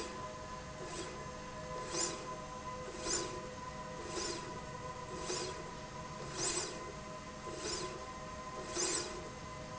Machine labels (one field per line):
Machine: slide rail